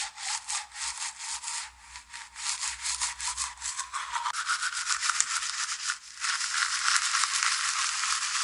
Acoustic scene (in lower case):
restroom